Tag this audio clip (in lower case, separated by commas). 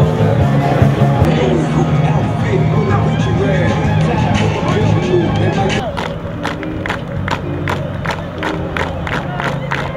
music, applause, clapping, speech